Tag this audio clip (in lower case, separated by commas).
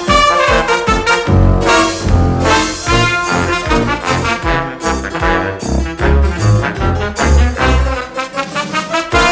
trumpet, trombone, brass instrument